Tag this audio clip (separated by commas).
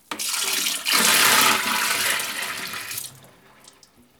Liquid